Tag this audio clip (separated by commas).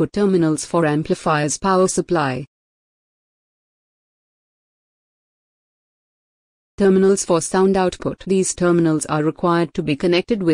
Speech